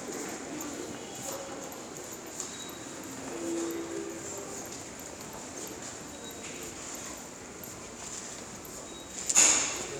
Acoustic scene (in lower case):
subway station